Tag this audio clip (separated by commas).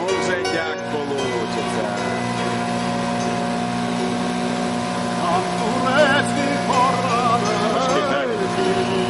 Water vehicle, speedboat